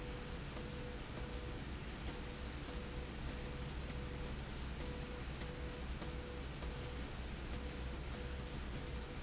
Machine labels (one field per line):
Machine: slide rail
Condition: abnormal